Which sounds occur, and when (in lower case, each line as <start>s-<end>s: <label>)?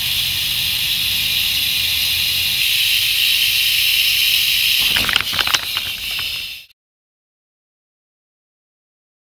0.0s-6.7s: mechanisms
0.0s-6.7s: rattle
4.9s-5.2s: generic impact sounds
5.3s-5.6s: generic impact sounds
5.8s-6.4s: generic impact sounds